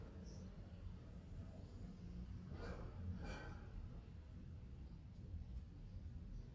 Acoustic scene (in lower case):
residential area